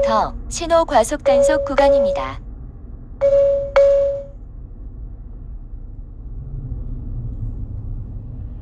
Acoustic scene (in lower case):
car